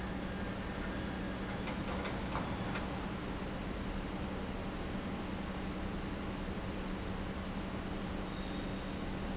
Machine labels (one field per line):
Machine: pump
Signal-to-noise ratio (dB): -6 dB